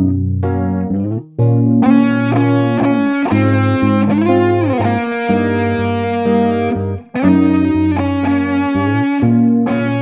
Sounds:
Effects unit, Music, Musical instrument, Plucked string instrument, Guitar

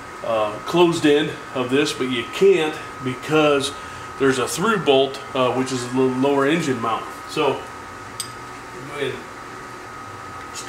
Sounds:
Medium engine (mid frequency), Speech

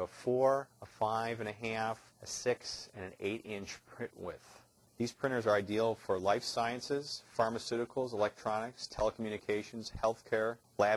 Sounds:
Speech

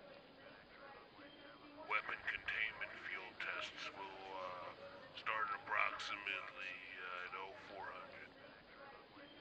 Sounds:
Speech

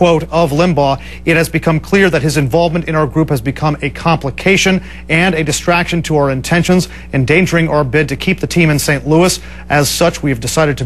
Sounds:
Speech

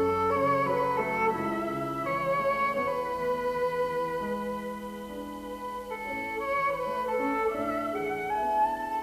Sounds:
Music, Musical instrument, fiddle

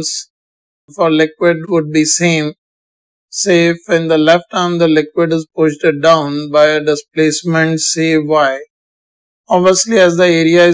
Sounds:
Speech

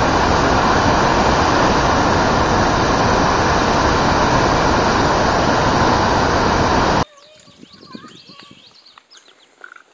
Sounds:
Pigeon, Speech

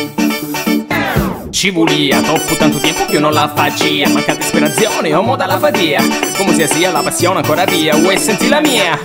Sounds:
Music

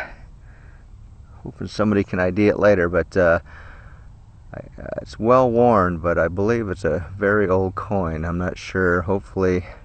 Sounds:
Speech

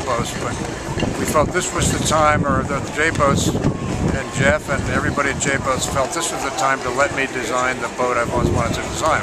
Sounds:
Speech

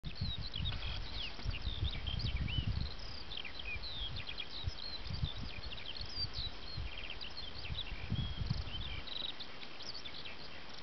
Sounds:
Bird vocalization

